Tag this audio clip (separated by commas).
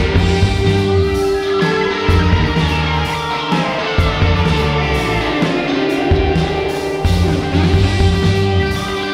Music